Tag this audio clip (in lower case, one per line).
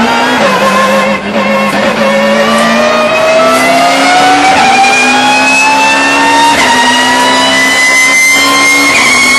mechanisms